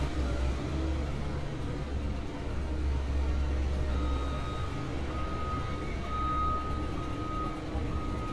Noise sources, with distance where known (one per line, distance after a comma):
reverse beeper, near